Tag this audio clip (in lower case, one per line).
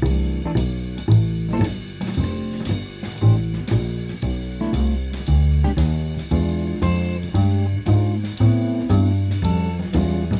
playing double bass